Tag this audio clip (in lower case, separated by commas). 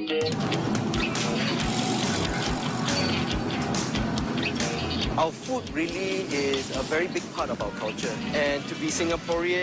music, speech